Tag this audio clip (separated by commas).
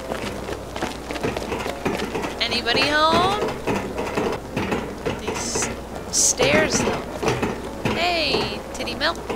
inside a large room or hall, Music, Speech